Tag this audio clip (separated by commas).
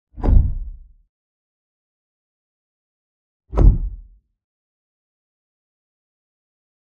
thud